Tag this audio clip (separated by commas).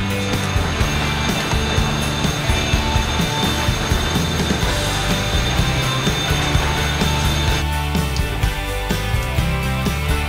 Music